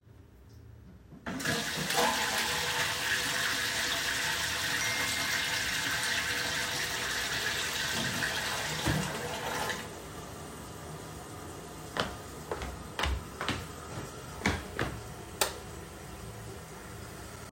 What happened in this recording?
While flushing the toilet I got a notification on my phone. After checking the notification I walked out the bathroom and turned off the lights.